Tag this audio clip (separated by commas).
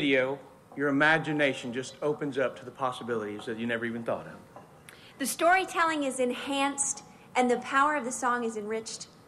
Speech